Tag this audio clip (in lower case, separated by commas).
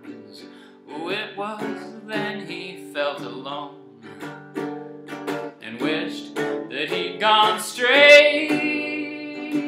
guitar, plucked string instrument, acoustic guitar, music, musical instrument